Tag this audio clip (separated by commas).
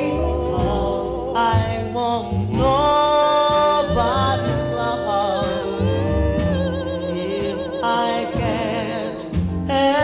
Music, Singing